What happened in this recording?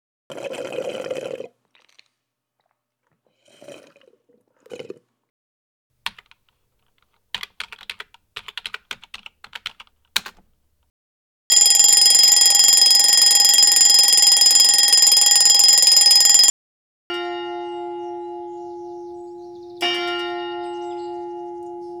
Phone on desk. Coffee machine audible in background, sustained keyboard typing, phone rang once, church bells faintly audible from outside window.